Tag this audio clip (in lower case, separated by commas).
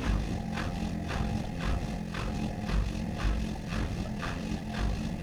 engine